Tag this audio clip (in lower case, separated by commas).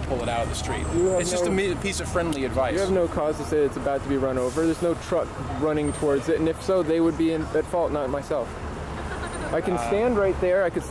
speech, vehicle